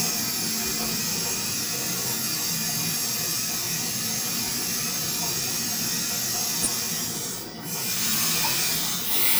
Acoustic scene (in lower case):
restroom